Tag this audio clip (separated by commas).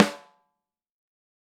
Drum, Musical instrument, Snare drum, Music, Percussion